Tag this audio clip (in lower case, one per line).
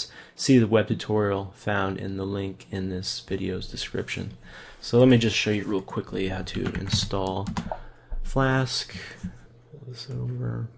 speech